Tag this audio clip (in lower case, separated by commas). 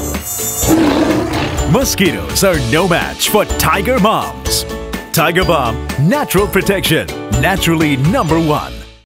speech, music